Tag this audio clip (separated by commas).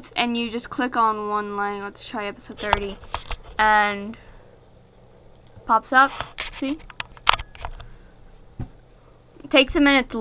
Speech